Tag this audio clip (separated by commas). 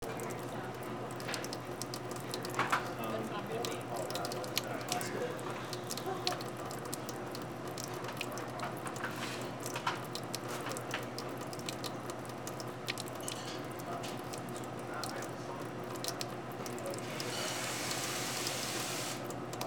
Water, faucet, home sounds, Sink (filling or washing)